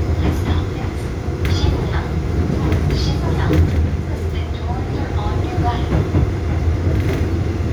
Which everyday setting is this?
subway train